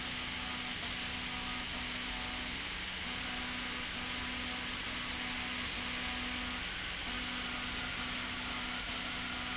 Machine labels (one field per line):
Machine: slide rail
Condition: abnormal